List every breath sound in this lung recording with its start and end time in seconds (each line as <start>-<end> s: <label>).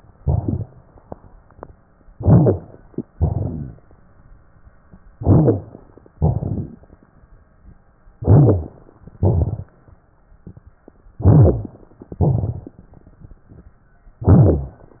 0.15-0.69 s: exhalation
0.15-0.69 s: crackles
2.13-2.66 s: inhalation
2.13-2.66 s: crackles
3.15-3.81 s: exhalation
3.15-3.81 s: crackles
5.14-5.81 s: inhalation
5.14-5.81 s: crackles
6.21-6.87 s: exhalation
6.21-6.87 s: crackles
8.16-8.82 s: inhalation
8.16-8.82 s: crackles
9.16-9.72 s: exhalation
9.16-9.72 s: crackles
11.18-11.80 s: inhalation
11.18-11.80 s: crackles
12.09-12.79 s: exhalation
12.09-12.79 s: crackles
14.23-14.88 s: inhalation
14.23-14.88 s: crackles